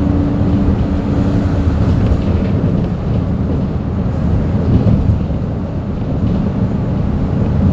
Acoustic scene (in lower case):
bus